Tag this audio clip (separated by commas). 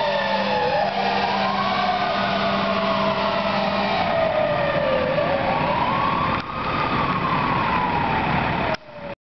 Engine, Vehicle, revving, Heavy engine (low frequency)